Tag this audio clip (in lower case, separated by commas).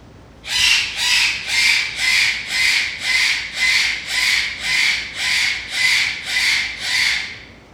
wild animals, bird, animal